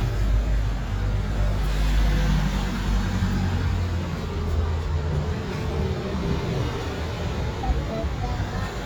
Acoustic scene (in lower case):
street